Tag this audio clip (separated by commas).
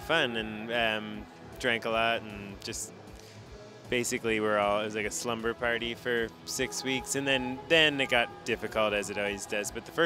Music, Speech